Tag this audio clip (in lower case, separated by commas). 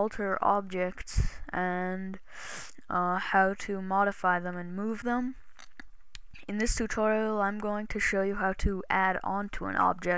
speech